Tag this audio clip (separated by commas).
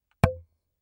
Tap